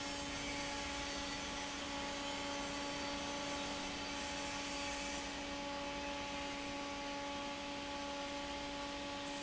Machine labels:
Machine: fan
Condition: normal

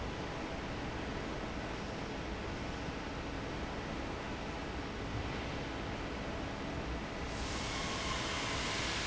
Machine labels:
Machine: fan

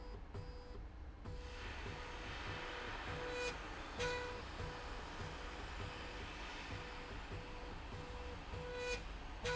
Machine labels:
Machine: slide rail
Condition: normal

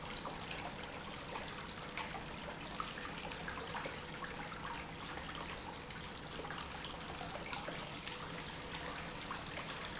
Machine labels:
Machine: pump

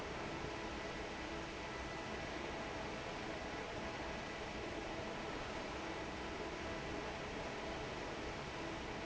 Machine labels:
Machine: fan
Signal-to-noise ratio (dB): 6 dB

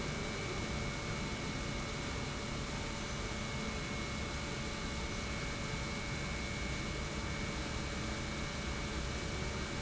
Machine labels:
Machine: pump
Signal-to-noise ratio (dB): -6 dB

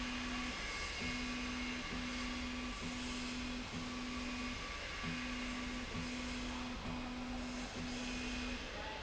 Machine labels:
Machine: slide rail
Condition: normal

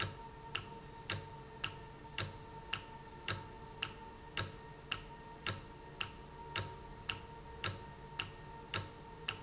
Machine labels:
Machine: valve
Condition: normal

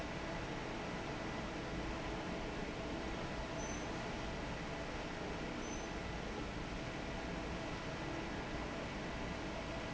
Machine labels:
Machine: fan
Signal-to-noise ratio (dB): 0 dB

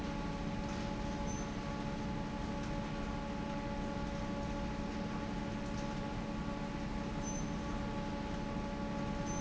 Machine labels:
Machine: fan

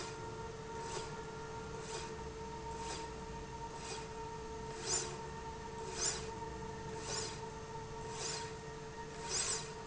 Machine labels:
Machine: slide rail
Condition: normal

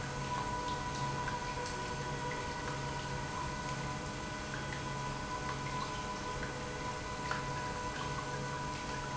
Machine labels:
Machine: pump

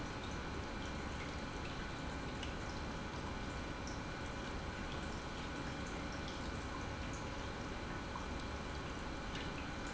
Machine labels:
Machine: pump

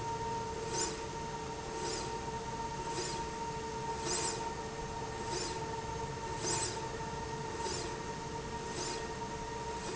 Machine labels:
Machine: slide rail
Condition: normal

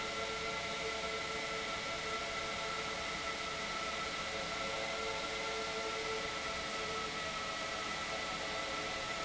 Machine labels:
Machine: pump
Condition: normal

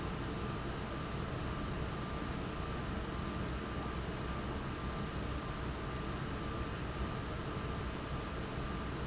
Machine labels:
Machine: fan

